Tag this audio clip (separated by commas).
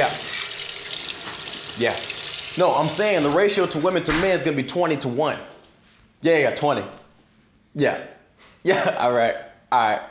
inside a small room, Speech, Water tap